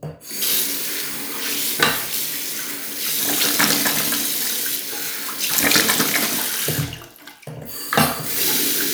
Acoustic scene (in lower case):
restroom